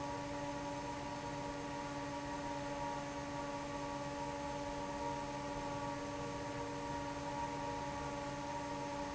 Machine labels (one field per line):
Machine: fan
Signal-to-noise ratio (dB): 0 dB